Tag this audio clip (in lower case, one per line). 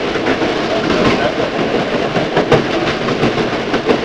vehicle
train
rail transport